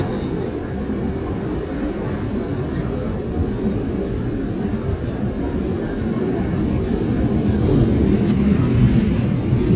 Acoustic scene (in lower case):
subway train